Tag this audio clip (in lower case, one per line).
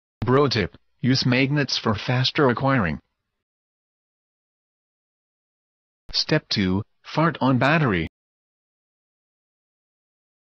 speech